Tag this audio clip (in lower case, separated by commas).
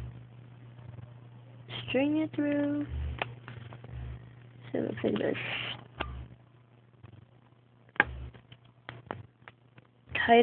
speech, inside a small room